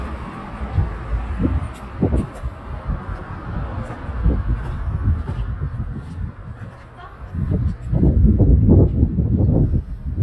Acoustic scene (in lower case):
residential area